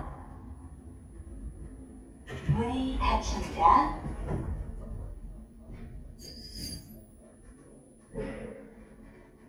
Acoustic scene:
elevator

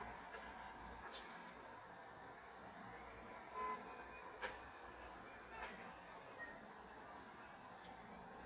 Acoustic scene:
street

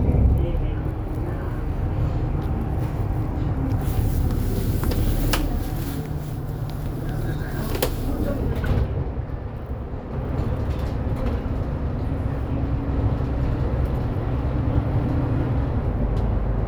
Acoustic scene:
bus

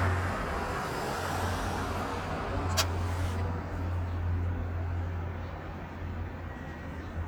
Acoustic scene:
street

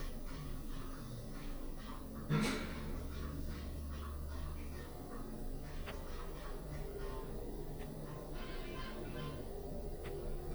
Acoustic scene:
elevator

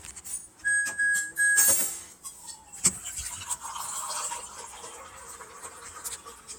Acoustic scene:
kitchen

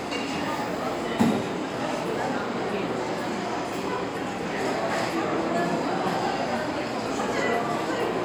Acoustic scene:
restaurant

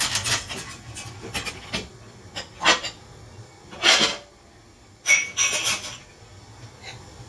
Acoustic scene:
kitchen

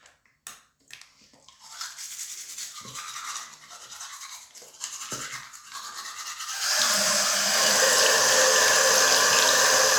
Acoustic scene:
restroom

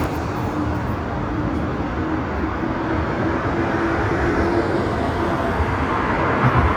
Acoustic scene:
street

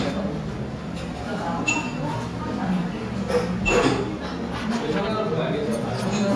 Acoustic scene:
restaurant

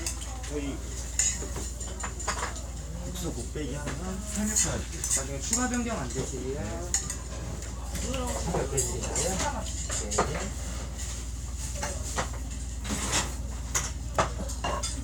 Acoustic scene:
restaurant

